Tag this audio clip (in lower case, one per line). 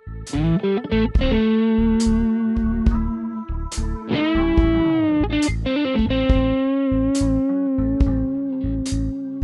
heavy metal
music